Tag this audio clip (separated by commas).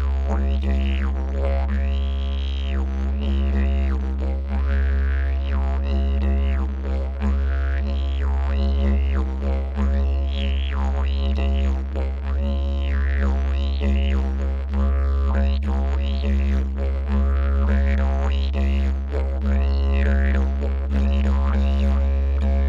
Music, Musical instrument